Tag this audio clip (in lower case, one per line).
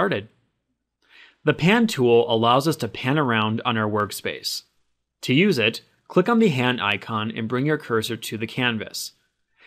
speech